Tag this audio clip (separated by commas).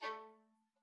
Musical instrument, Music, Bowed string instrument